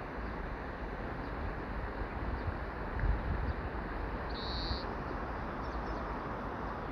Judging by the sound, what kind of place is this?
park